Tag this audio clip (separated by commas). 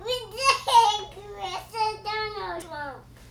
Human voice, Speech